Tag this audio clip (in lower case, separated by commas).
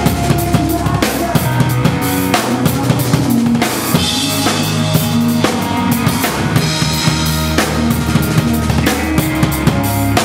drum, musical instrument, rimshot, drum kit, music, snare drum